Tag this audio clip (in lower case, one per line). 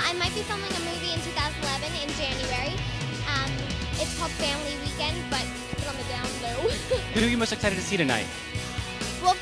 music
speech